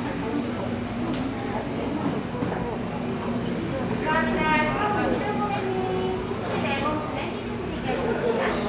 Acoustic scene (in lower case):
cafe